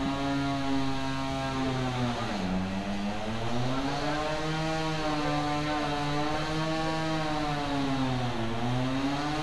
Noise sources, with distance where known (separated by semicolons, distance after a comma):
unidentified powered saw, near